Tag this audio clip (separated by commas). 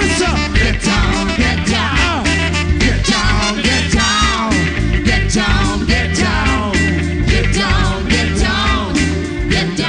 Music, Funk